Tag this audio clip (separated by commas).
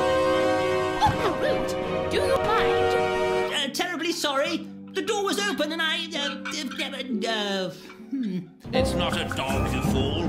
Musical instrument, Music, Violin, Speech